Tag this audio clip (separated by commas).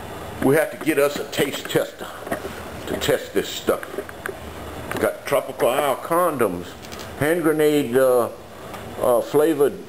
Speech, inside a small room